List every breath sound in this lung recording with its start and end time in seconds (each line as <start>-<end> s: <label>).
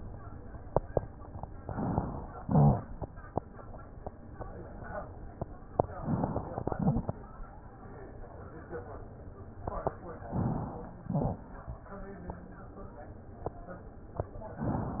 1.59-2.43 s: inhalation
2.40-3.28 s: exhalation
2.40-3.28 s: wheeze
5.81-6.62 s: inhalation
6.61-7.42 s: exhalation
6.61-7.42 s: wheeze
10.19-11.02 s: inhalation
11.04-11.64 s: wheeze
11.04-11.88 s: exhalation